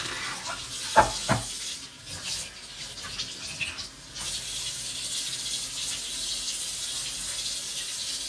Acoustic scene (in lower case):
kitchen